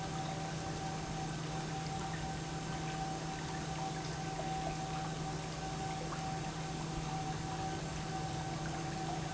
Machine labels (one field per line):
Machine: pump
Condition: normal